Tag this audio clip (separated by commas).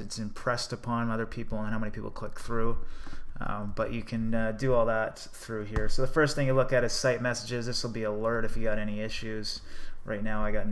Speech